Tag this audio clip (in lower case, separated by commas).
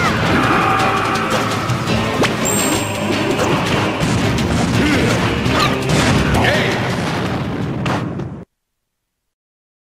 speech, music